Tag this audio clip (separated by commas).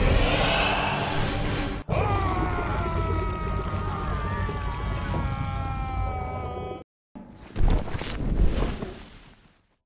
Animal, Roar, Music